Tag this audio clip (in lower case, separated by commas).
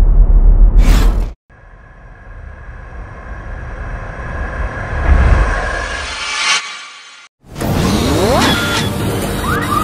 airplane, music